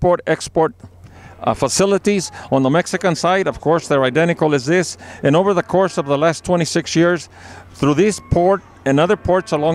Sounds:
Speech

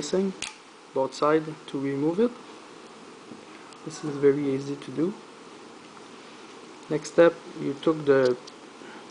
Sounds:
Rustle

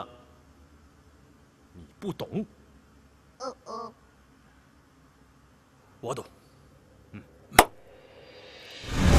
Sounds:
Speech, Music, inside a small room

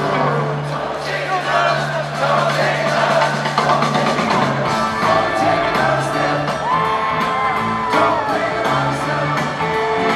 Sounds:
Singing

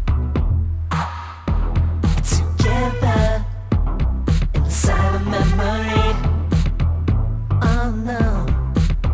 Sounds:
Music

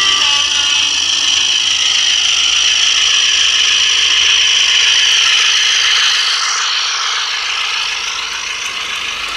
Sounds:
Rail transport, Train, outside, urban or man-made

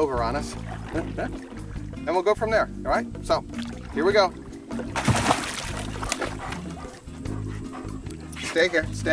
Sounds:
Dog, pets, Music, Animal, Speech

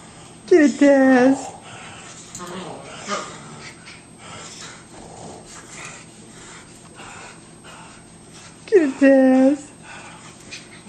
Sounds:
Animal, Dog, Domestic animals, Speech

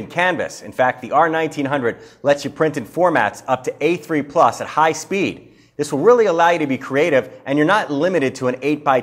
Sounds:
Speech

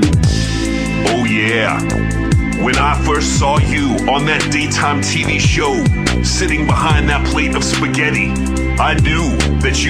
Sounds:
Speech, Music

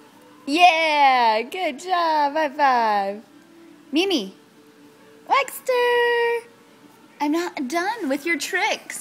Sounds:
Speech

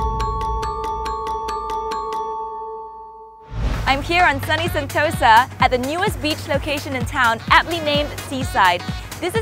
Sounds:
Speech, Music

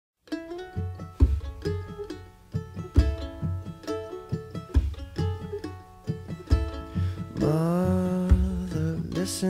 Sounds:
Mandolin

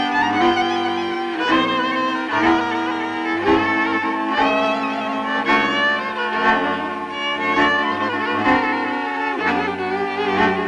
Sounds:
Music, Dance music

